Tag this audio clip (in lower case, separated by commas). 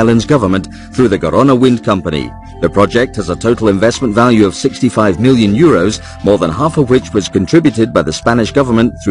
speech, music